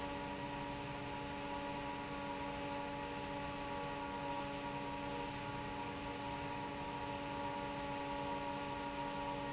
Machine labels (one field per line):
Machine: fan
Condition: normal